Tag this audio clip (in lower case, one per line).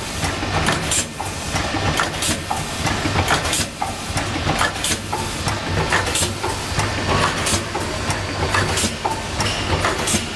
inside a large room or hall